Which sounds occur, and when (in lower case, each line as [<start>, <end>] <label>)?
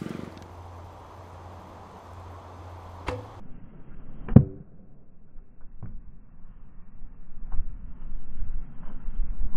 [0.00, 0.41] engine
[0.00, 9.55] wind
[2.99, 3.33] wobble
[4.21, 4.58] thunk
[5.56, 5.97] thunk
[7.43, 7.60] thunk